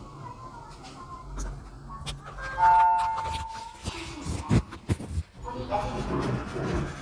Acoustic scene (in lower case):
elevator